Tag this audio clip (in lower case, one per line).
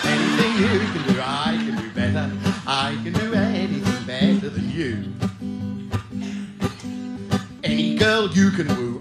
music
guitar
musical instrument
singing
plucked string instrument
country